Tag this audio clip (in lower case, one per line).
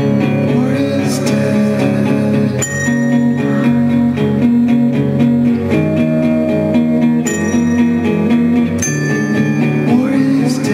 guitar
singing
music
plucked string instrument
musical instrument